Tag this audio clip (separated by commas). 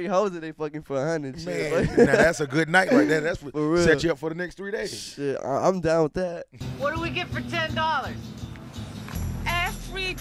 Music, Speech